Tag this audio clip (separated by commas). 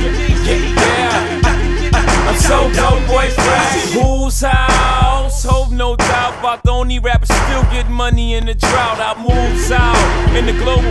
Music